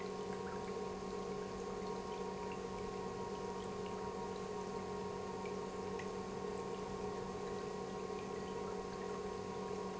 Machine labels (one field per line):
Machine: pump